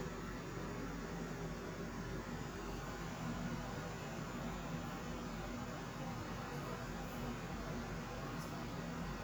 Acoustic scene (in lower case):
kitchen